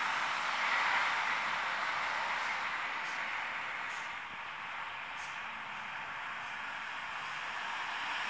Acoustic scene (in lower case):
street